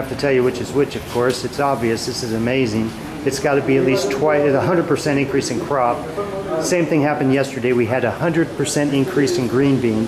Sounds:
Speech

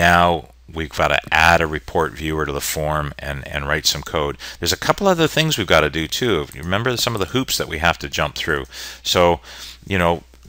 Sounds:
Speech

